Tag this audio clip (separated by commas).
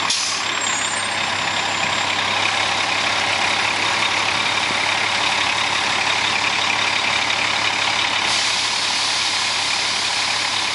Bus, Vehicle